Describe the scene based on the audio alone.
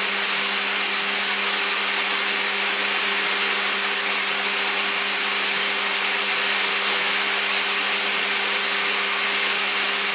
Air powered tool being used